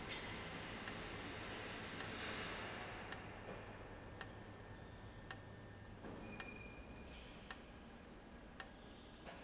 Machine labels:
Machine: valve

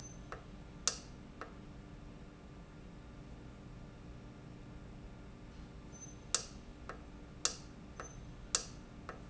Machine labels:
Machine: valve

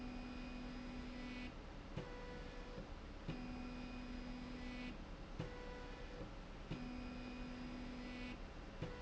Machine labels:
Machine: slide rail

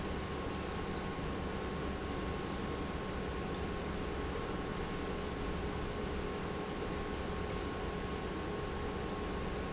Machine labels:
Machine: pump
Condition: normal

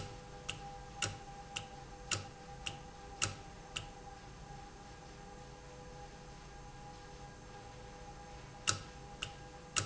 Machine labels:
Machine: valve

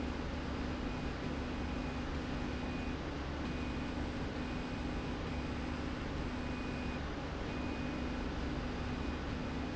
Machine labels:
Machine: slide rail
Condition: normal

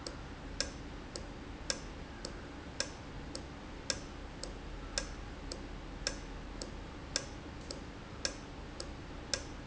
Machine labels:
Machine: valve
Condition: normal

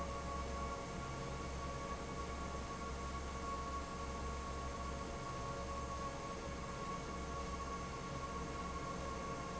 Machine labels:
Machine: fan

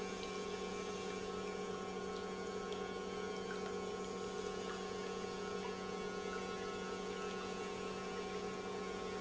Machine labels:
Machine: pump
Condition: normal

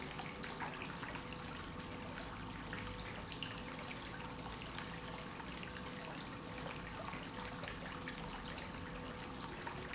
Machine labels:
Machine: pump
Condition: normal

